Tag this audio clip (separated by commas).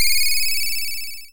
Telephone, Alarm, Ringtone